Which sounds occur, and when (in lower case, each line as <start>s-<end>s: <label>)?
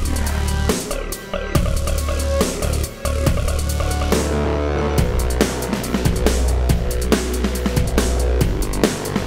0.0s-9.2s: music